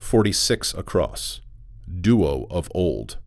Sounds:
man speaking, Speech, Human voice

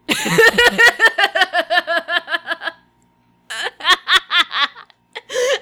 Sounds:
Laughter, Human voice

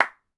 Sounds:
Hands, Clapping

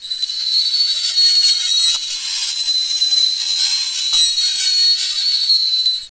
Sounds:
Screech

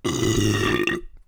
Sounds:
Burping

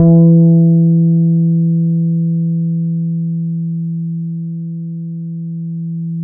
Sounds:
Musical instrument, Guitar, Music, Bass guitar, Plucked string instrument

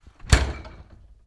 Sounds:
Door, home sounds, Slam

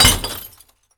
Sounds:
Glass

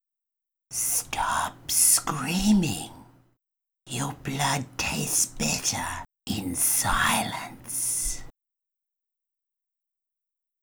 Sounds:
Human voice, Whispering

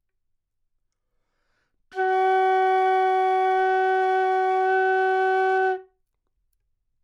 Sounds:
woodwind instrument, Music, Musical instrument

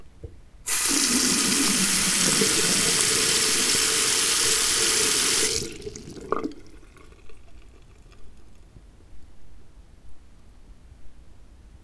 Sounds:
Sink (filling or washing), Liquid, Domestic sounds

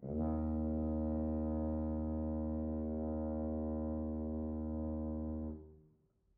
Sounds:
Brass instrument, Music, Musical instrument

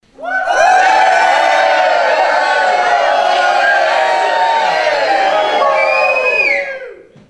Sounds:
Cheering, Human group actions, Crowd

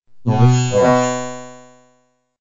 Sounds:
Human voice, Speech, Speech synthesizer

